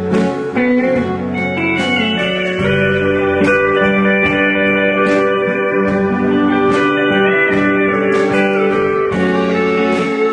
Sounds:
Music, slide guitar, Percussion, Musical instrument, Country, Guitar

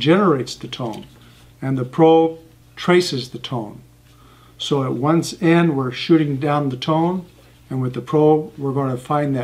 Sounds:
Speech

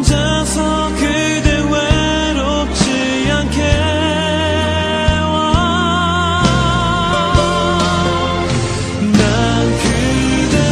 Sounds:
Music

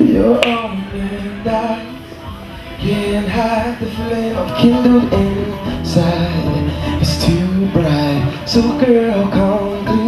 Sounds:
Musical instrument, Plucked string instrument, Guitar, Speech, Music

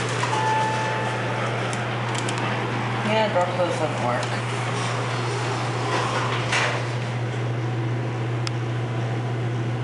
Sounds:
inside a public space, Speech

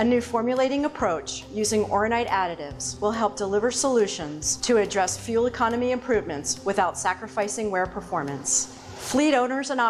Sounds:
Speech

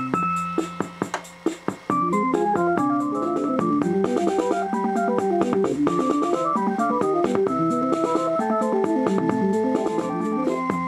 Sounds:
playing synthesizer

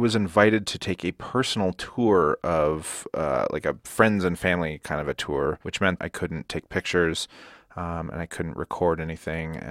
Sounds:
Speech

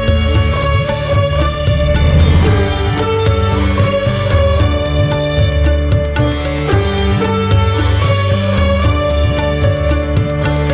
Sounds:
playing sitar

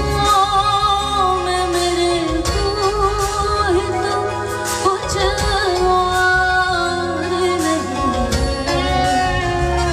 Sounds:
Music

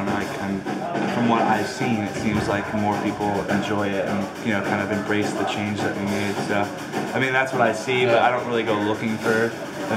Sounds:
Speech, Music

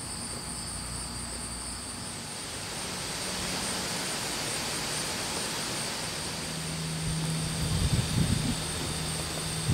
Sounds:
Animal

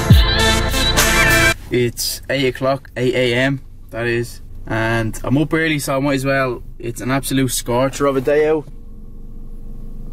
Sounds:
Male speech, Speech, Music

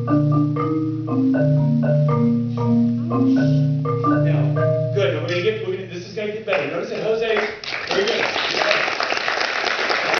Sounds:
Music, Speech, Percussion

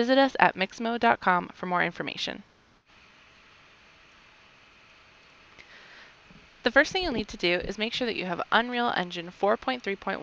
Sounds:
Speech

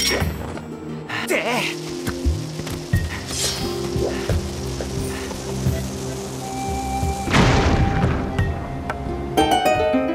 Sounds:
Speech, Music

